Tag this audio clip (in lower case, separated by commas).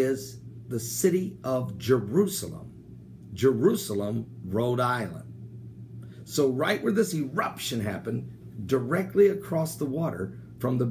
speech